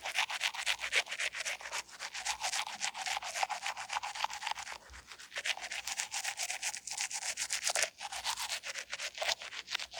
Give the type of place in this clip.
restroom